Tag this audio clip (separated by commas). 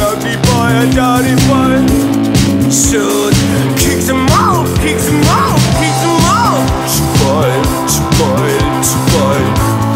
Male singing, Music